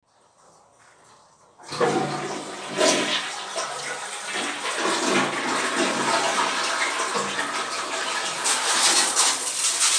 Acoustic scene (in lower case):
restroom